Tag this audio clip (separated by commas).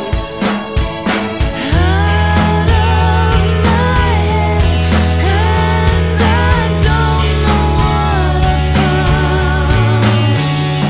Music